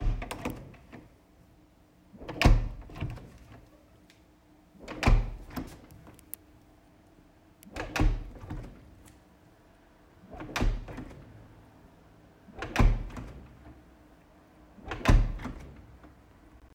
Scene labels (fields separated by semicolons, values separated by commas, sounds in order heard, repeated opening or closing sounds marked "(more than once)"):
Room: bathroom; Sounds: door